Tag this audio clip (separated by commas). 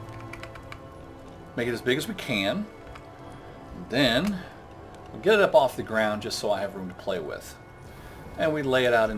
Music, Speech